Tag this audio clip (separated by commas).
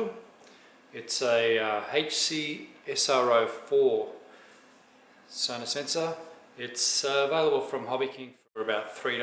Speech